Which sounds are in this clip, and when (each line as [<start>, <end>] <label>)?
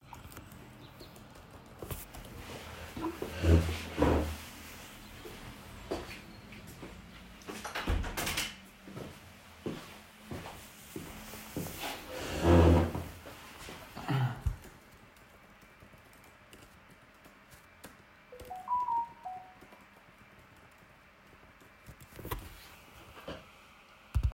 [0.00, 2.63] keyboard typing
[5.21, 7.44] footsteps
[7.48, 8.62] window
[8.85, 12.05] footsteps
[14.61, 22.27] keyboard typing
[18.28, 19.59] phone ringing